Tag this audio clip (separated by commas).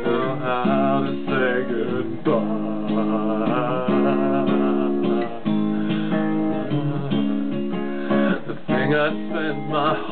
Music, Musical instrument, Singing